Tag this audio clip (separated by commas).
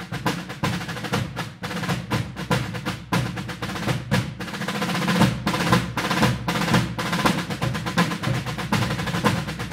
playing snare drum